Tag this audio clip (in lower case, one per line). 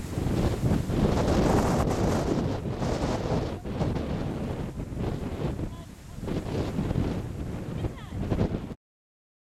speech